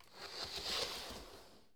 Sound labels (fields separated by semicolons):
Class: furniture moving; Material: wooden